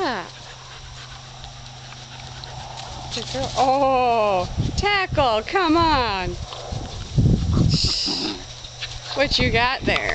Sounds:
Speech, Domestic animals, outside, rural or natural, Animal, Dog

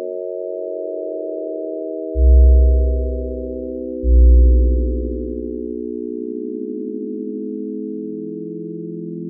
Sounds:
Sine wave

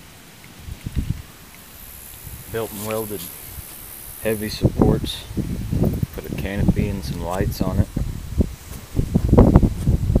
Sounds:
footsteps, Speech

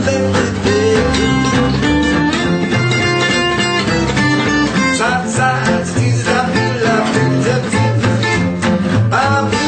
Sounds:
Music

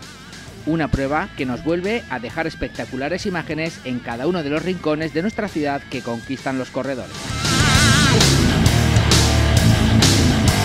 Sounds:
Speech, Music

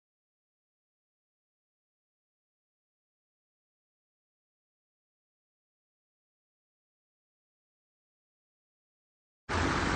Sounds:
Silence

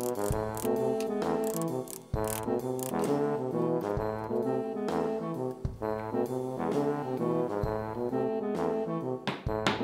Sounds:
Music

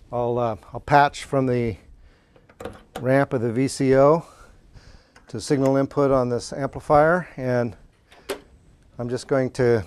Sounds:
Speech

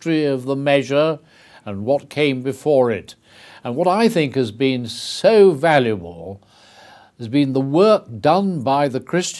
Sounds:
Speech, Male speech, Narration

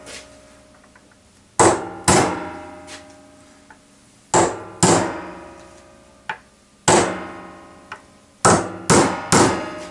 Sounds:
hammering nails

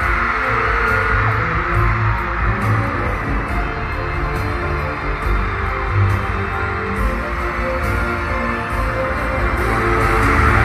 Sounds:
Music

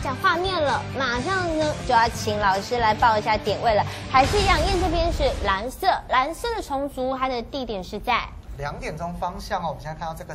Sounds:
Music, Speech, Door

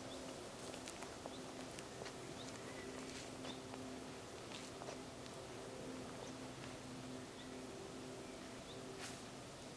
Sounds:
outside, rural or natural, Animal

